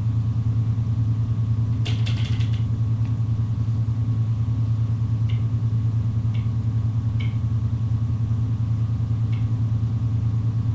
Motor running in background along with clicking sound